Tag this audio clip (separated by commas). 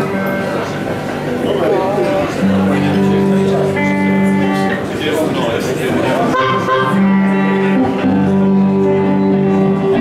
Music, Speech